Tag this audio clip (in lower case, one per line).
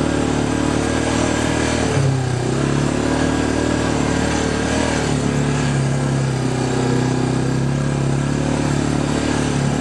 vehicle
outside, rural or natural